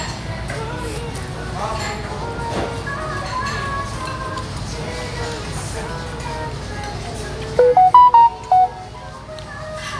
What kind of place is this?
restaurant